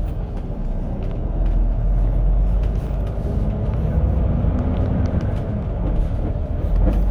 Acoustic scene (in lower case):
bus